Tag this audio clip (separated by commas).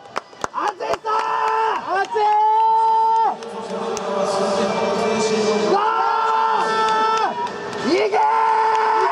Run, Speech, inside a public space